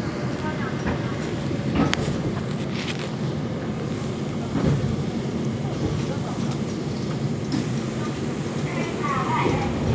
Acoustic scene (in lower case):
subway train